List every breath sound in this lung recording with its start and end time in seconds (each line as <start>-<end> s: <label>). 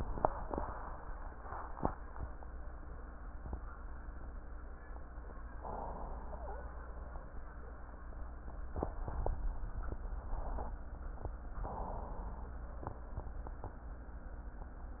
5.56-6.61 s: inhalation
6.33-6.61 s: wheeze
11.56-12.53 s: inhalation